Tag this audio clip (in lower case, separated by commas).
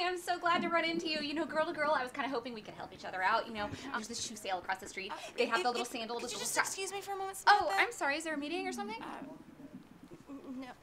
people farting